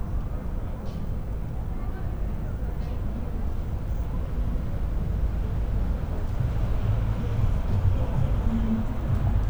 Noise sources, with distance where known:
person or small group talking

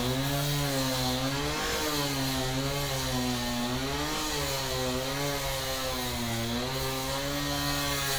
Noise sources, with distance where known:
chainsaw, near

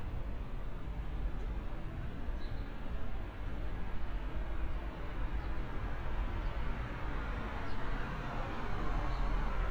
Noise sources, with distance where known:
medium-sounding engine

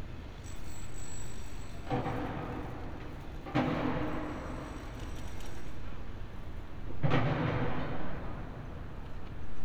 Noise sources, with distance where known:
unidentified impact machinery, far

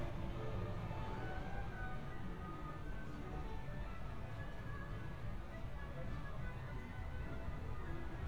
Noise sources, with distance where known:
music from an unclear source

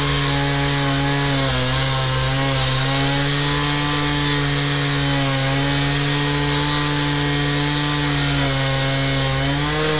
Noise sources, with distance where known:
unidentified powered saw, near

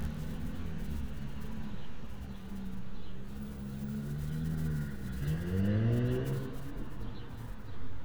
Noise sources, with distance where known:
engine of unclear size, far

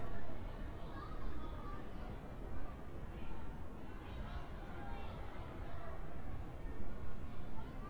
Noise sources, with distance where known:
person or small group talking, far

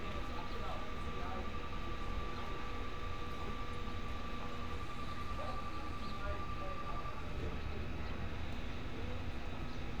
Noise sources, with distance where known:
person or small group talking, far

